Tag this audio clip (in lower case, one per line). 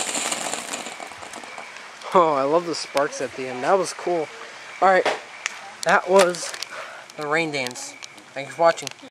speech